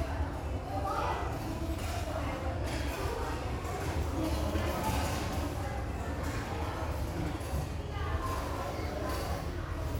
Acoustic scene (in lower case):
restaurant